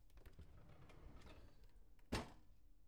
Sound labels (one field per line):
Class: drawer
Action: opening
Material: wooden